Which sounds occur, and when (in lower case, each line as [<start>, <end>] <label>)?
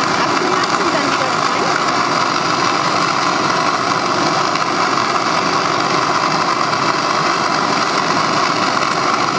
[0.00, 9.35] fire
[0.16, 1.63] woman speaking
[0.59, 0.71] tick